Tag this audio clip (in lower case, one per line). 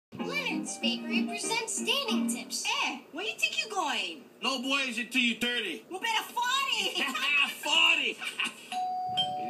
music
speech
inside a small room